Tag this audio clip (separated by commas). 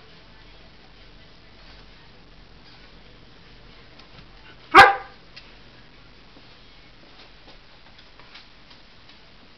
Bark